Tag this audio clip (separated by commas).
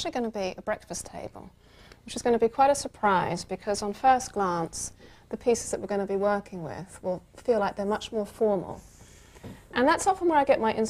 Speech